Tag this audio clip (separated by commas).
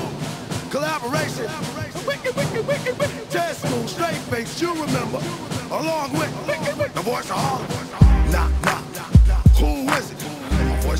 Music